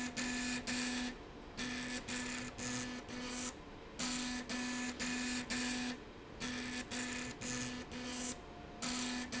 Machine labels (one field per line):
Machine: slide rail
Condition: abnormal